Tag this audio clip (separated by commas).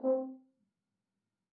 Music, Brass instrument, Musical instrument